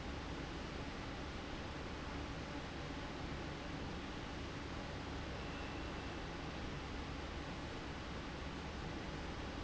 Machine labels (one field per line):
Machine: fan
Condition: abnormal